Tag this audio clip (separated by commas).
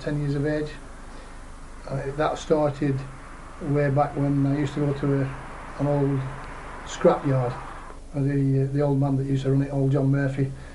Speech